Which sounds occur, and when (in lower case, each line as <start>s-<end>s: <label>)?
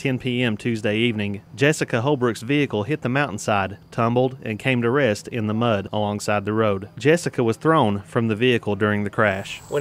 0.0s-1.4s: male speech
0.0s-9.8s: background noise
1.5s-3.7s: male speech
3.9s-9.8s: male speech